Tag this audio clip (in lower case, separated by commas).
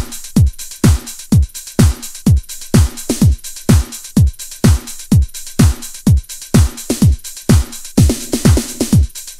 electronica, music